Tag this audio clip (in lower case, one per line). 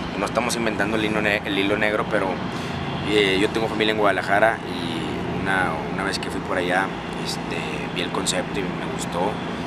vehicle
truck
speech